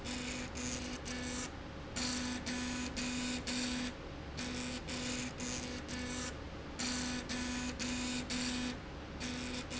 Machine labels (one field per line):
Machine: slide rail